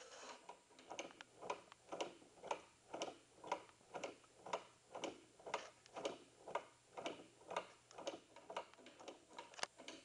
A clock ticking